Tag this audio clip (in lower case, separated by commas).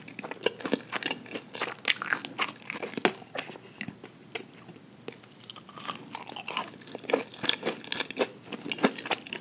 people slurping